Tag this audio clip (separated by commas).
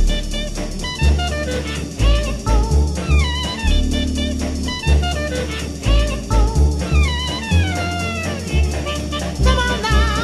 Swing music